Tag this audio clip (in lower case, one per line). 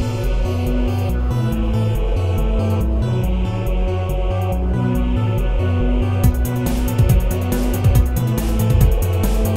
soundtrack music
music